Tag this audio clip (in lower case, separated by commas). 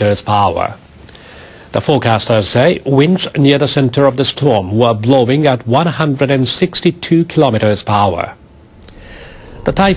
speech